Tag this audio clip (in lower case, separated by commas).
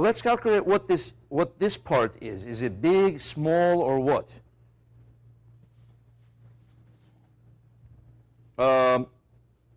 speech, inside a large room or hall